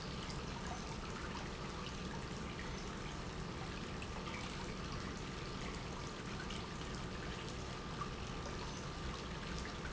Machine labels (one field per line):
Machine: pump